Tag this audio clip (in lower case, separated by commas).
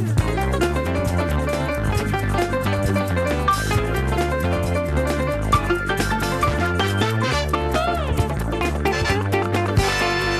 punk rock, music